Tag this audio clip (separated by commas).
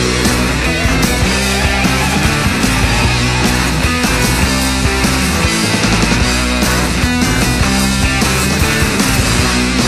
Music